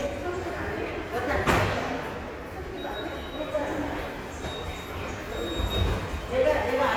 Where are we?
in a subway station